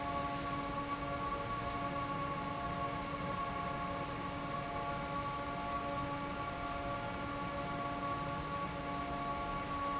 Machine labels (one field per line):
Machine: fan